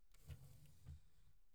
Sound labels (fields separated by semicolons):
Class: drawer; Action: opening; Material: wicker